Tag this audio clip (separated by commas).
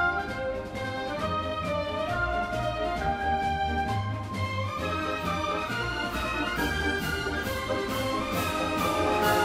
Orchestra, Music